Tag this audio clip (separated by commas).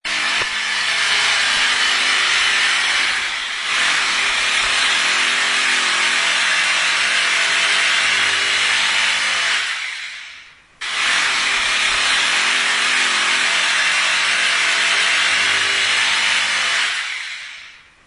Tools, Drill, Power tool